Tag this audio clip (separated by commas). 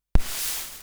Hiss